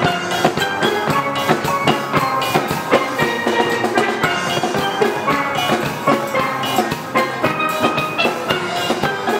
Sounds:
Steelpan, Music

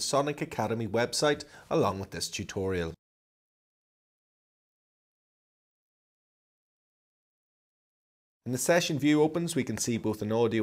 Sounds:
Speech

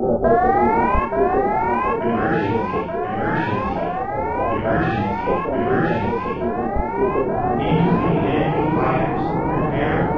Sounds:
Speech

